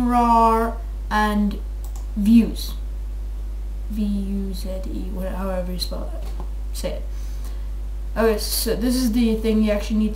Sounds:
Speech

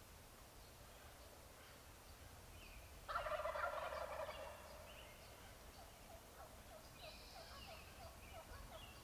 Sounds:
Turkey, Fowl, Gobble

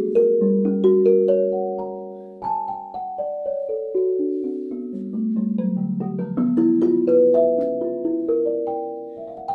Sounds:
Music

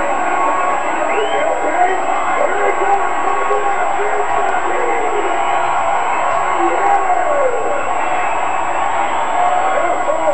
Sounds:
Speech

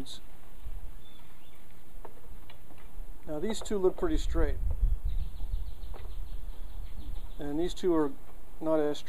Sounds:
Speech

